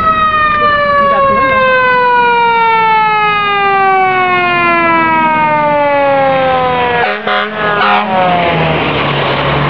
Emergency fire truck siren is revving